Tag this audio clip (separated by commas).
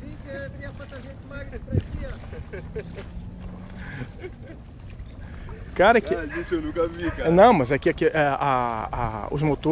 Speech, Sailboat